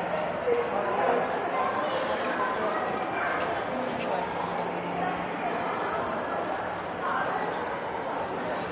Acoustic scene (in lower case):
crowded indoor space